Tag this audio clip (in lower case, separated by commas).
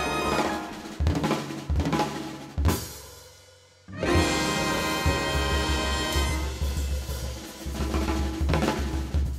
drum kit, snare drum, bass drum, drum roll, percussion, drum, rimshot